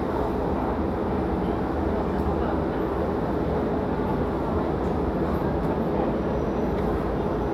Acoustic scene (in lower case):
crowded indoor space